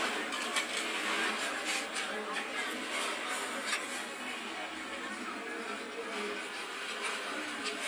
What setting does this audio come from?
restaurant